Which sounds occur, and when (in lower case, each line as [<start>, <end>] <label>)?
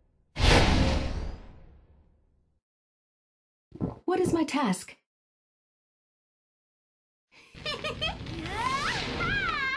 [0.00, 0.30] background noise
[0.00, 2.58] video game sound
[0.32, 2.60] sound effect
[3.68, 5.02] video game sound
[3.70, 4.01] sound effect
[4.04, 4.99] woman speaking
[4.15, 4.44] sound effect
[7.29, 9.75] video game sound
[7.31, 8.10] giggle
[7.31, 9.75] sound effect
[8.31, 9.06] human voice
[9.18, 9.75] human voice